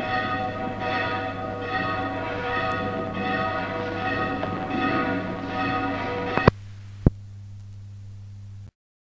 A bell is chiming